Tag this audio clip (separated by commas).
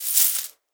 Coin (dropping), home sounds